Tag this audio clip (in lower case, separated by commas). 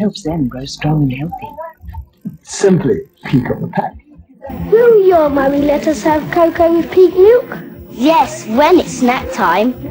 music, speech